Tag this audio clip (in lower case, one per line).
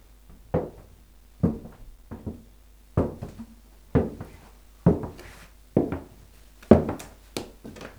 footsteps